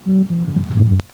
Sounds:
bass guitar, guitar, musical instrument, music, plucked string instrument

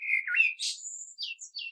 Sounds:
bird, animal, wild animals

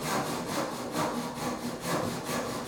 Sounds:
tools, sawing

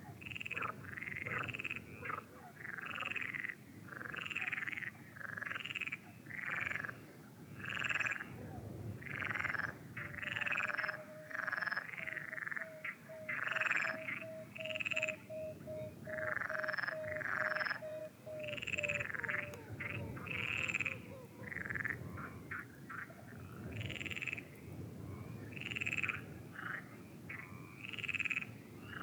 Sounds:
animal, frog, wild animals

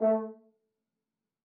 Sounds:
musical instrument, brass instrument, music

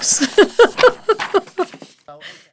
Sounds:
human voice, laughter, giggle

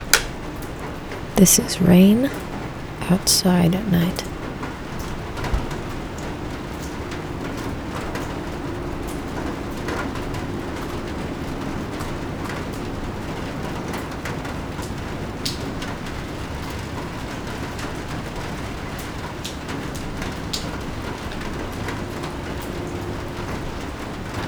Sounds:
water, rain

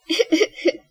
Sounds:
laughter, human voice

